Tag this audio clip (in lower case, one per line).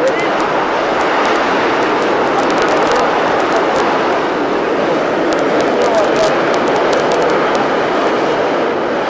speech
explosion